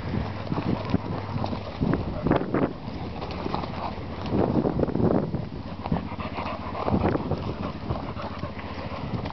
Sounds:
pets, Dog, Animal

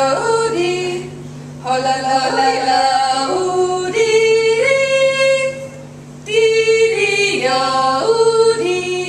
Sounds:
Female singing, Singing, Yodeling

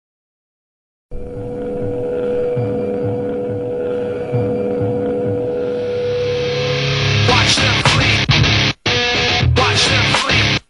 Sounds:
Music

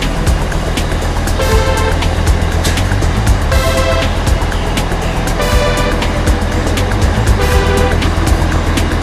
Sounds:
Music, Vehicle

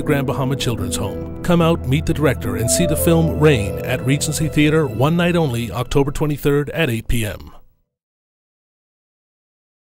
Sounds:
Speech, Music

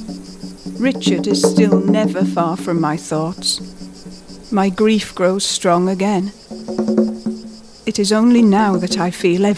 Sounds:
Music, Speech

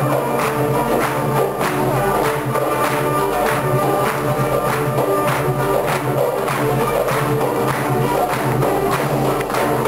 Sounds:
Jazz, Music

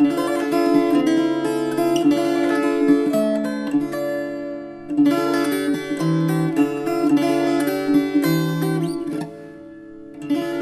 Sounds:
Mandolin, Plucked string instrument, Guitar, Music, Musical instrument

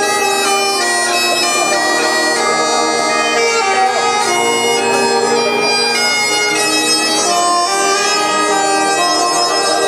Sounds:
Saxophone, Brass instrument

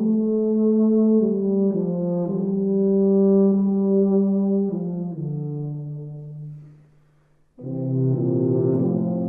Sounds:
Brass instrument

